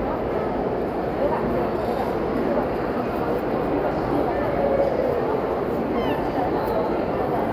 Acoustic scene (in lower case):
crowded indoor space